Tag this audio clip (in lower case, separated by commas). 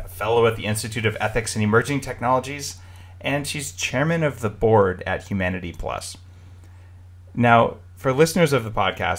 speech